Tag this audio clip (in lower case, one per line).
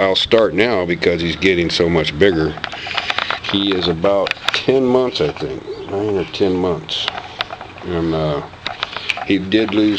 animal
speech